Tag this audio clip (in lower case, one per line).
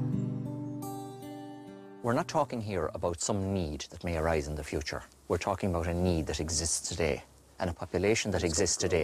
speech
music